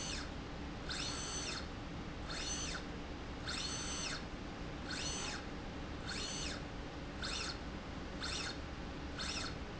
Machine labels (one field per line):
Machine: slide rail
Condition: normal